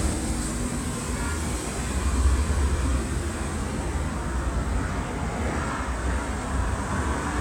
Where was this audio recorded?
on a street